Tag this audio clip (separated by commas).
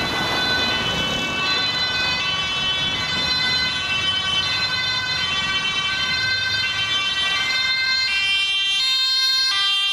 Vehicle